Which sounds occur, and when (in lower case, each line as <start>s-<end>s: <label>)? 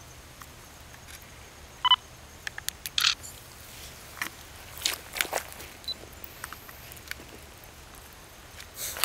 0.0s-9.0s: mechanisms
0.3s-0.5s: generic impact sounds
0.9s-1.2s: generic impact sounds
1.8s-2.0s: bleep
2.4s-2.9s: generic impact sounds
2.7s-2.7s: generic impact sounds
3.0s-3.2s: single-lens reflex camera
4.1s-4.3s: generic impact sounds
4.8s-5.4s: generic impact sounds
5.8s-5.9s: bleep
6.4s-6.7s: generic impact sounds
7.0s-7.2s: generic impact sounds
8.5s-8.8s: generic impact sounds
9.0s-9.0s: generic impact sounds